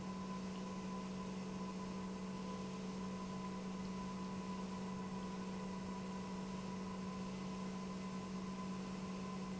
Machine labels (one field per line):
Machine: pump